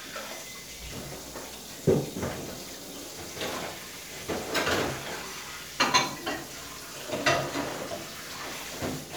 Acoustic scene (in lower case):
kitchen